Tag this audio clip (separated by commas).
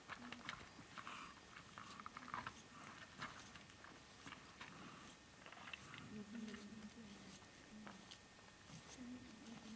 Chewing, Animal